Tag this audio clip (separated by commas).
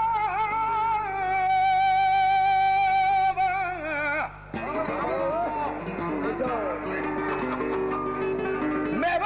Speech, Singing, man speaking, Music